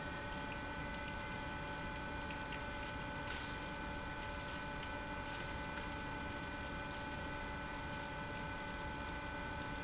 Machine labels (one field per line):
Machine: pump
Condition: abnormal